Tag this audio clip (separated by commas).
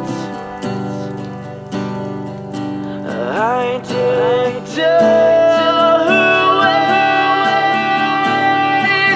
Rain on surface